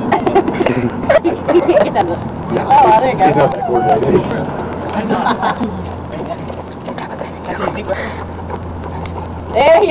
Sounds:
run, speech, outside, rural or natural

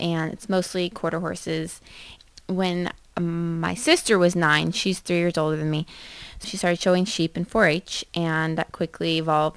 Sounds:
speech

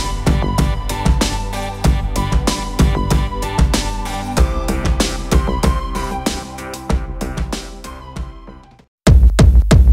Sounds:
music

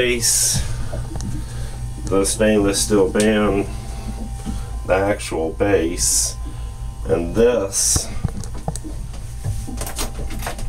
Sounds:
speech

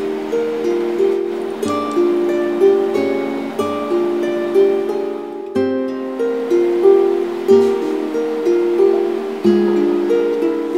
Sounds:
music, tender music

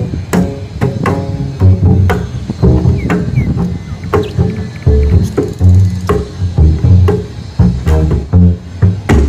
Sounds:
playing double bass

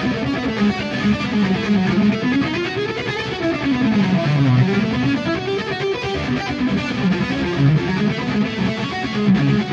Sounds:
musical instrument, music, violin

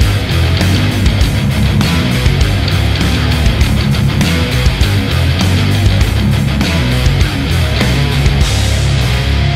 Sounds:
slide guitar, musical instrument, music

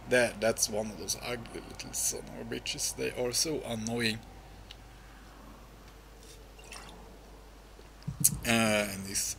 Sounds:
drip, speech

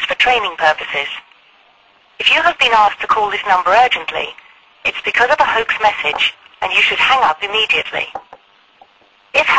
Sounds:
speech, telephone

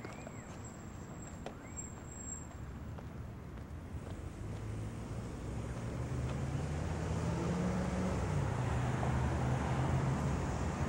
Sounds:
car, vehicle

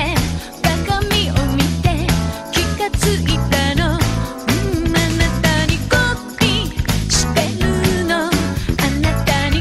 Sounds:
musical instrument, music

